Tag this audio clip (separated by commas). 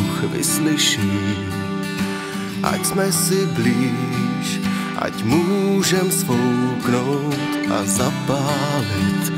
Music